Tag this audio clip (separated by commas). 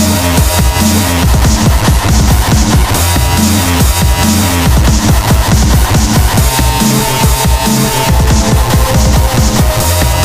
Dubstep, Music, Electronic music